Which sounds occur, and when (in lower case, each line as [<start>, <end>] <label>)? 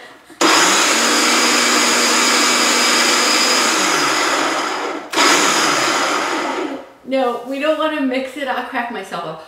[0.00, 9.45] background noise
[0.38, 6.89] blender
[7.01, 9.35] female speech